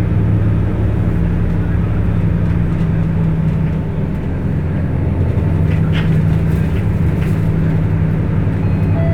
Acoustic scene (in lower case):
bus